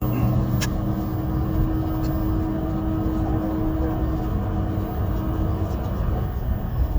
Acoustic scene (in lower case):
bus